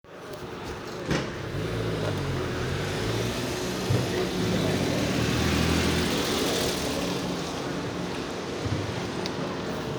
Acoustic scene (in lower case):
residential area